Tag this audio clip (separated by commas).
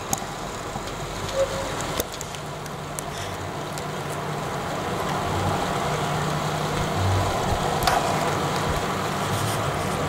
Rain on surface